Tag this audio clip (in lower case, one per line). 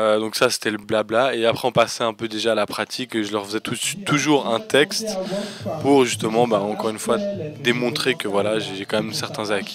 music
speech